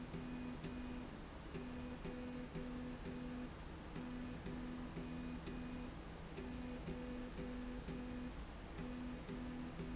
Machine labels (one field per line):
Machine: slide rail